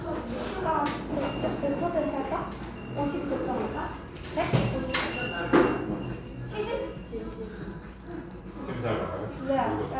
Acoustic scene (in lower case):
cafe